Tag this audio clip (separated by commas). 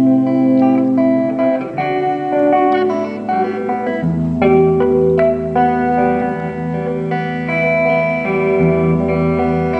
Musical instrument, Bass guitar, Music, Plucked string instrument, Acoustic guitar, Guitar, Strum